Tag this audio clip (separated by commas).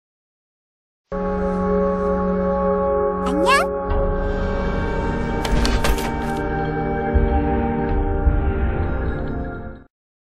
Ambient music, Speech, Music